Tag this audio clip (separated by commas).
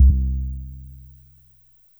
Piano, Keyboard (musical), Music, Musical instrument